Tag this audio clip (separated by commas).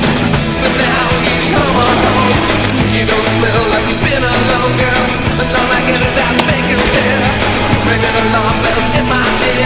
Bicycle, Vehicle, Music